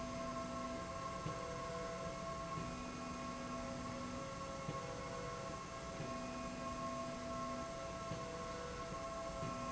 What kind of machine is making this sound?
slide rail